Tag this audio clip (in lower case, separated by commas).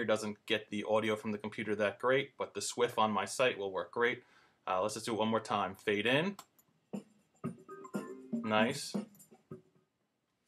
music, speech